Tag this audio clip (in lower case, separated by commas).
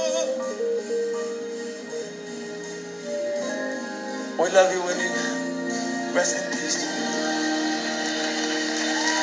speech, music, male singing